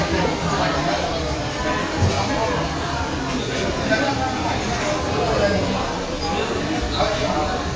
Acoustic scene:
crowded indoor space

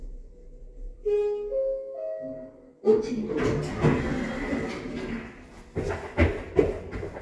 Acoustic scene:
elevator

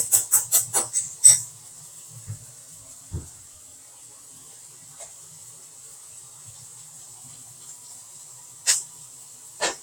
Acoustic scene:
kitchen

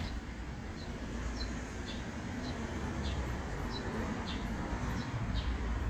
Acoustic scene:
residential area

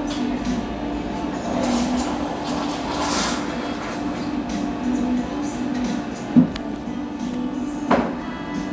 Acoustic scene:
cafe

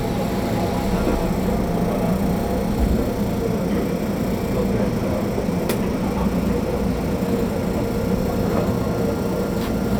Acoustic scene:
subway train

